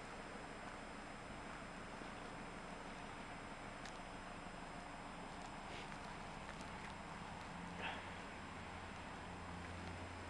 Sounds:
car, vehicle

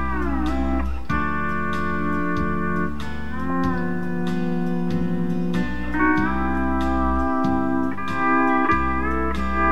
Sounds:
steel guitar, music

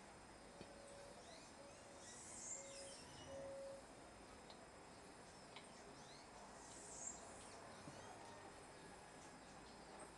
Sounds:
inside a small room

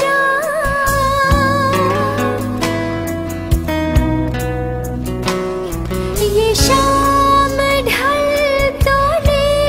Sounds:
singing

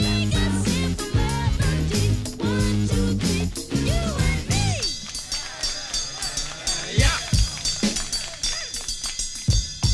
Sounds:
funk

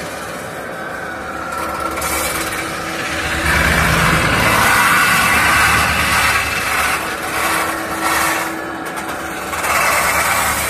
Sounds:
lathe spinning

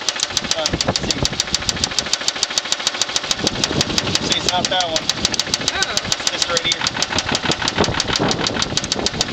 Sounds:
speech, idling, vehicle, engine

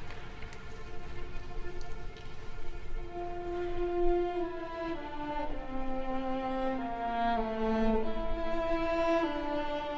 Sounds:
orchestra, music

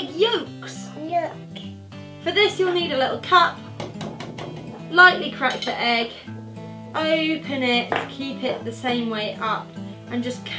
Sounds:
kid speaking

